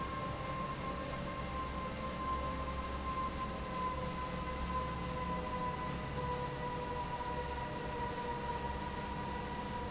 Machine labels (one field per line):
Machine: fan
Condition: normal